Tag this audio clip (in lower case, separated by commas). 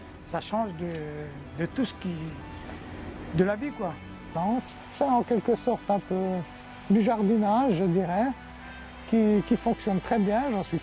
music, speech